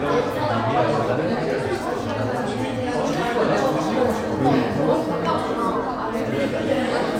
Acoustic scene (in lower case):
crowded indoor space